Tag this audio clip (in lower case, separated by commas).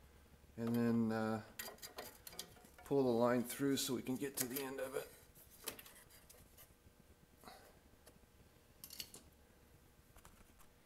inside a small room, speech